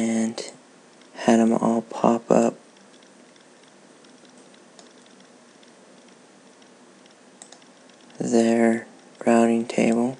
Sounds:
speech

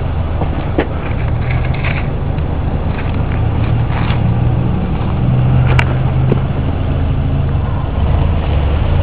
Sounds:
car passing by

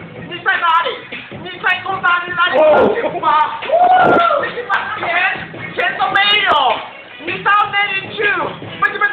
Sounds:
inside a large room or hall, speech, music

